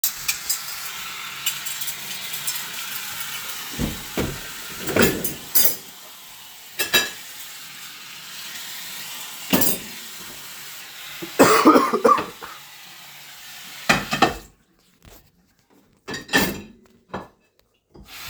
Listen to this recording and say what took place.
I am doing the dishes while is water is running and I have to cough.